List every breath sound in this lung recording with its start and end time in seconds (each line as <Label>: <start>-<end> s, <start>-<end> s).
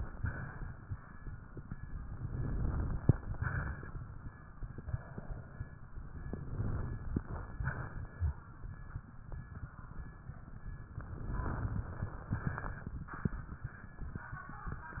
Inhalation: 2.09-3.05 s, 6.19-7.16 s, 10.98-12.10 s
Exhalation: 0.00-0.72 s, 3.08-4.04 s, 7.24-8.36 s, 12.14-12.97 s
Crackles: 2.09-3.05 s, 6.19-7.16 s, 10.98-12.10 s